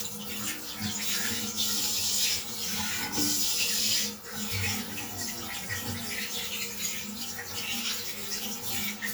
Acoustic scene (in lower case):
restroom